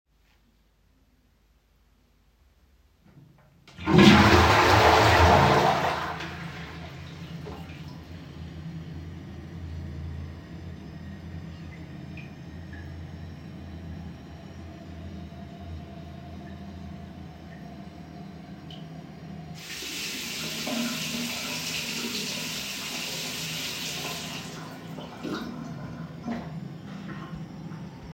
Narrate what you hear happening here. I flushed the toilet. After doing so, I washed my hands.